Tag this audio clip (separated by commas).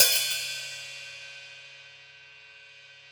Musical instrument, Hi-hat, Cymbal, Percussion, Music